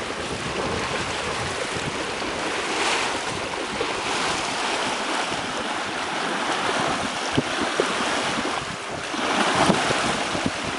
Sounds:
Ship, Sailboat, sailing, Vehicle, Water vehicle

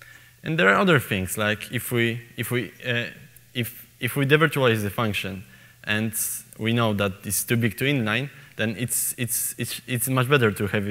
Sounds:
Speech

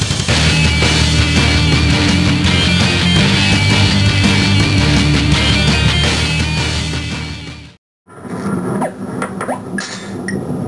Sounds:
Music

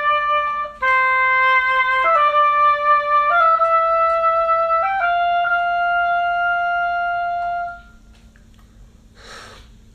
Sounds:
playing oboe

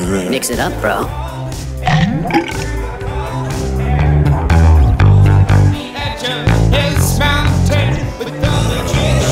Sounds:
Music

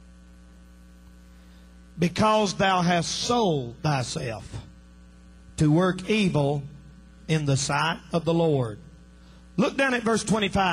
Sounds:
Speech

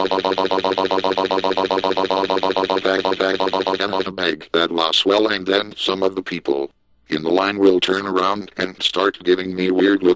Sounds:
Speech

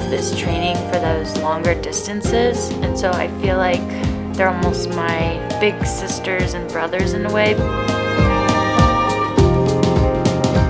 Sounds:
Music, Speech

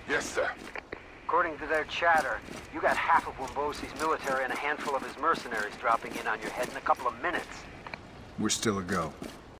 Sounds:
Speech

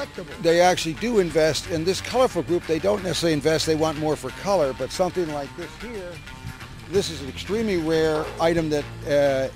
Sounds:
Speech, Music

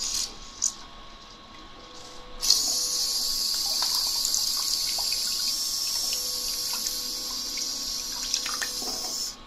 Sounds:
Bathtub (filling or washing), Water

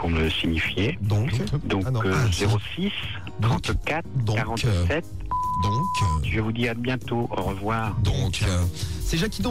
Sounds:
Speech

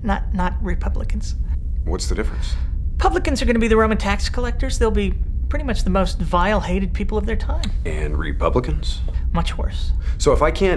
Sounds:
Speech, inside a small room

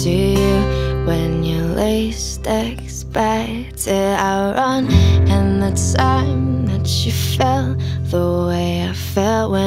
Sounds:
Tender music, Music

